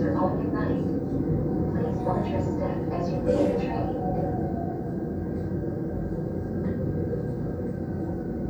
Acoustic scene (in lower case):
subway train